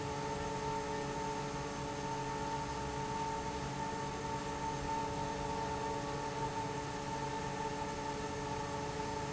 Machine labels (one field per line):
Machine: fan